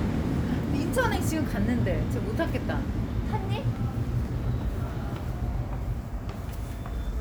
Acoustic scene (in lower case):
subway station